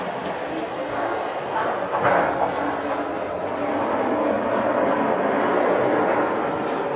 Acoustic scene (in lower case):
crowded indoor space